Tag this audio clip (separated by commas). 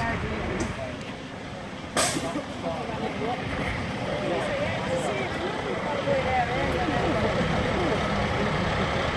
Truck, Idling, vroom, Speech, Heavy engine (low frequency), Vehicle